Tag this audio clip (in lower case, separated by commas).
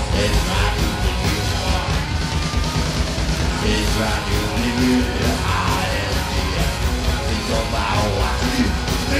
punk rock, singing